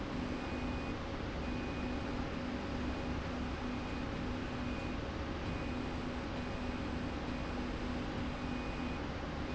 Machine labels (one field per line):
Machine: slide rail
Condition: normal